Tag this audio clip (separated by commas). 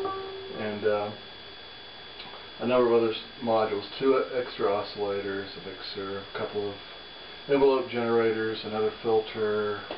Speech